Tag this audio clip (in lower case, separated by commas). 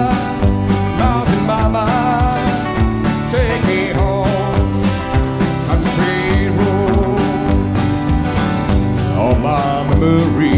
musical instrument, music, country